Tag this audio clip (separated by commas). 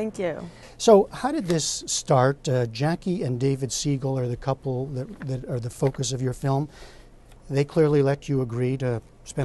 Speech